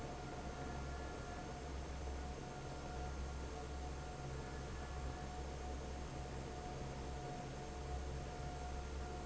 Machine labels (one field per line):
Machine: fan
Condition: normal